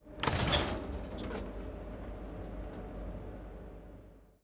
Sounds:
domestic sounds, rail transport, train, sliding door, vehicle, door

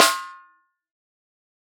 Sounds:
snare drum, music, drum, percussion, musical instrument

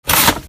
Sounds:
tearing

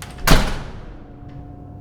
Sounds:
slam, door, home sounds

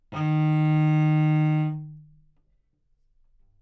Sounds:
music, musical instrument, bowed string instrument

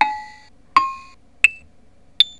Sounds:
music, musical instrument, keyboard (musical)

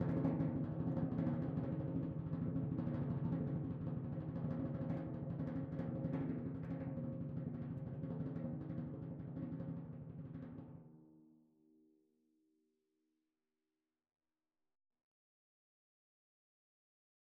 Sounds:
musical instrument, music, drum, percussion

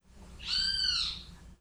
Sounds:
bird, animal, wild animals

